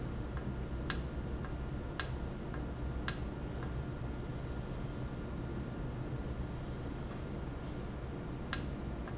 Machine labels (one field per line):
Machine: valve